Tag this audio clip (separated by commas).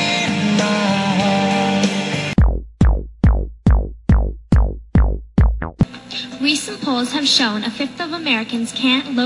Drum machine, Speech, Music